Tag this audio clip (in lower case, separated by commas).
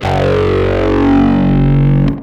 plucked string instrument, bass guitar, guitar, musical instrument, music